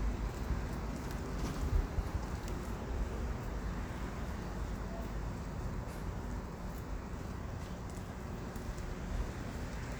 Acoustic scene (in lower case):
residential area